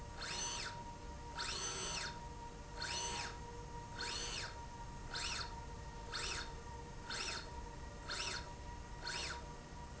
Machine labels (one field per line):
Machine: slide rail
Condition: normal